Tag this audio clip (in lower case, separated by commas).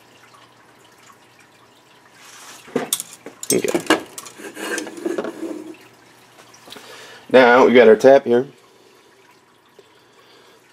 speech